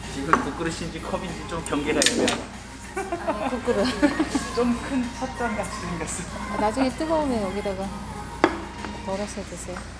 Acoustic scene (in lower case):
restaurant